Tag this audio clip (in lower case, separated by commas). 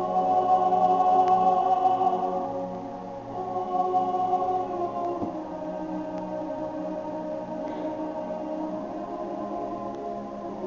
choir, music